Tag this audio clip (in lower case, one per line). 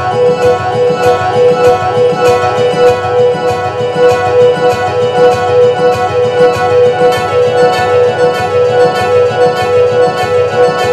music